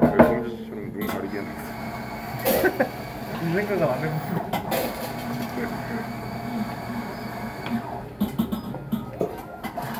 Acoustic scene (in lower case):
cafe